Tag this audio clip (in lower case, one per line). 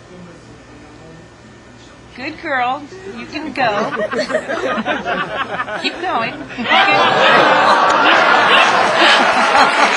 speech